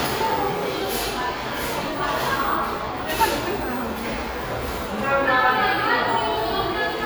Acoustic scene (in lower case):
cafe